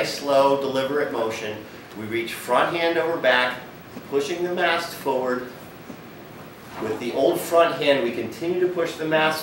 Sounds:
Speech

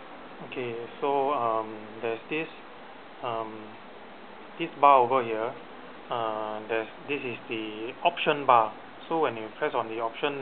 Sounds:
Speech

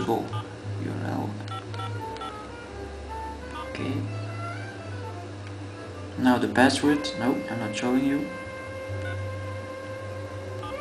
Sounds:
Music, Speech

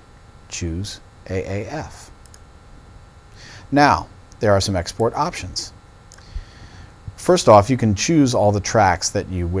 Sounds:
Speech

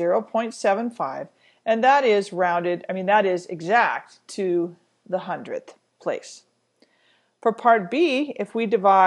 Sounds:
Speech

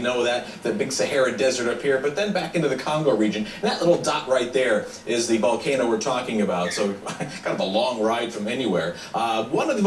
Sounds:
Speech

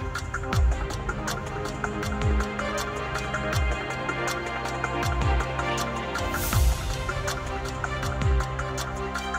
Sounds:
Music

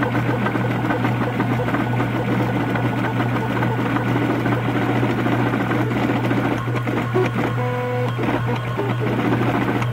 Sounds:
Printer

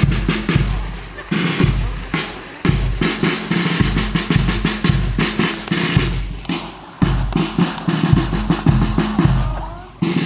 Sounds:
Speech, Stream, Music

